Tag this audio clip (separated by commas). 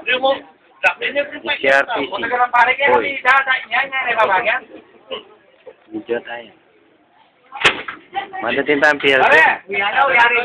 Speech